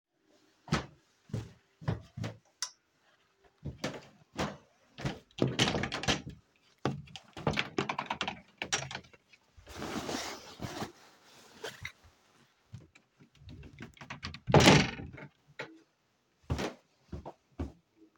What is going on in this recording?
I walked into the room,open the wadrobe,took a dress and closed the wadrobe